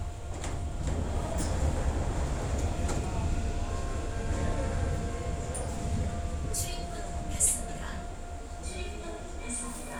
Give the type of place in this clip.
subway train